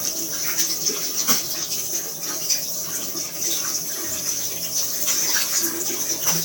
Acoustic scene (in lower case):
restroom